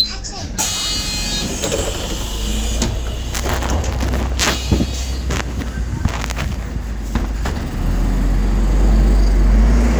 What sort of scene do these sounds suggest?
bus